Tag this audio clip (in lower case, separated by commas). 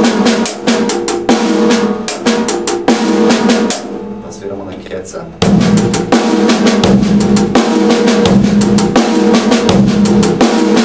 drum kit, bass drum, cymbal, music, drum roll, speech, musical instrument, drum